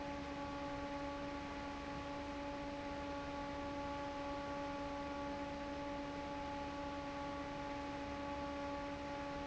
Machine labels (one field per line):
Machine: fan